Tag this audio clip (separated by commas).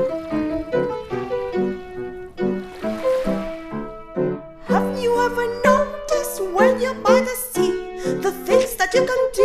Music